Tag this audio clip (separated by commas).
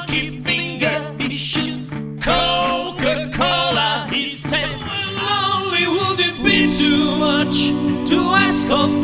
Singing, Guitar, Vocal music